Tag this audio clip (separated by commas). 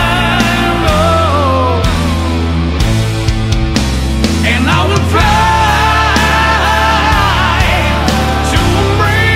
Progressive rock, Music, Singing